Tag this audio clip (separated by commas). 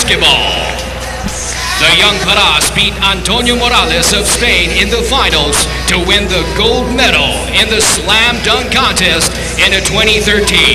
Speech, Music